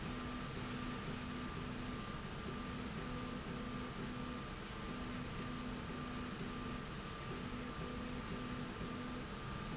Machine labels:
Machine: slide rail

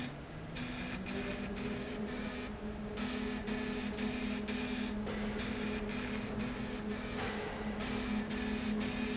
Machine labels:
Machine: slide rail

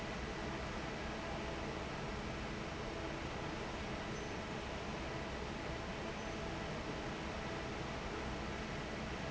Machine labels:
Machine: fan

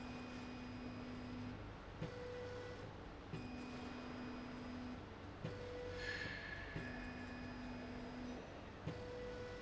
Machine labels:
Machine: slide rail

